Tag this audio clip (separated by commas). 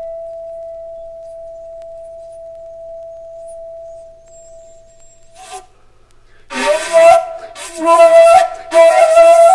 Music, Musical instrument, Flute